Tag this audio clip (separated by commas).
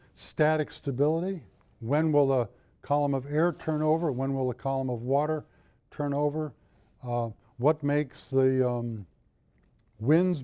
Speech